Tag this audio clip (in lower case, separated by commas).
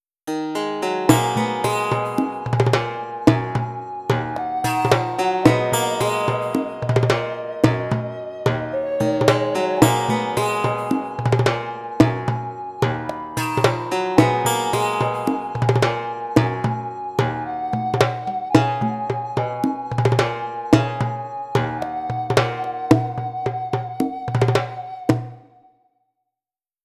music, plucked string instrument, musical instrument